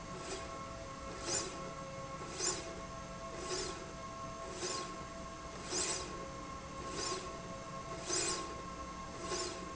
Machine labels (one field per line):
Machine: slide rail